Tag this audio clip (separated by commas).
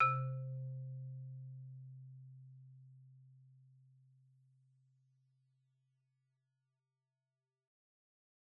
Music, Musical instrument, Mallet percussion, xylophone, Percussion